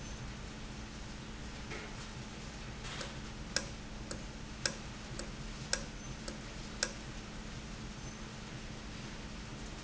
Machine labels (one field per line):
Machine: valve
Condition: normal